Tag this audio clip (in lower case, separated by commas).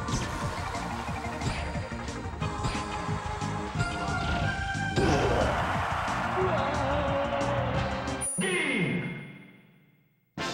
music